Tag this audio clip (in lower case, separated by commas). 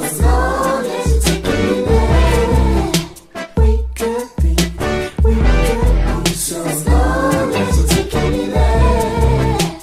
music, rhythm and blues